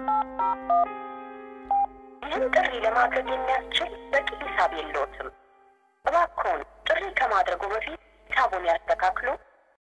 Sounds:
Speech, Music

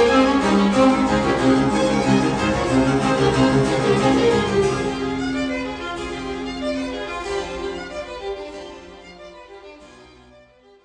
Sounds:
playing harpsichord

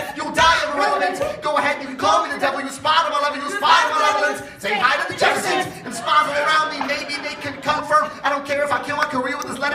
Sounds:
Rapping, Singing

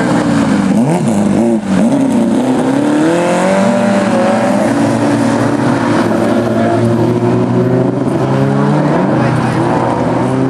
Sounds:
Motor vehicle (road), auto racing, Car, Vehicle

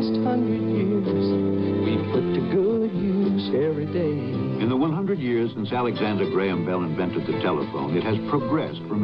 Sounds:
Speech, Music

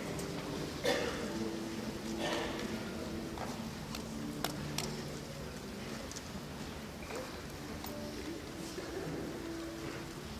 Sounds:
Guitar, Music, Speech, Musical instrument

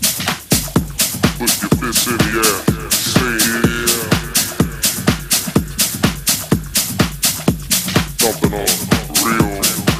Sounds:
Music

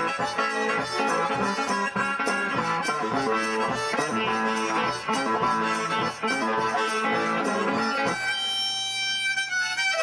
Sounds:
Blues, Guitar, Music, Harmonica

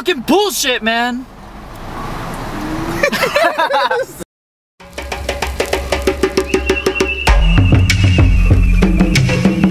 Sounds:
Sampler, Speech, Music

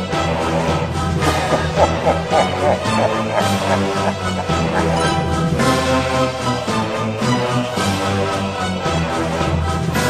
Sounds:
Music

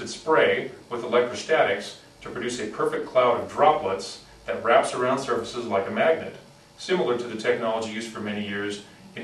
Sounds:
Speech

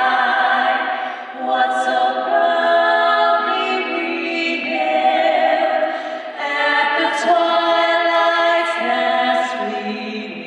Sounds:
Female singing

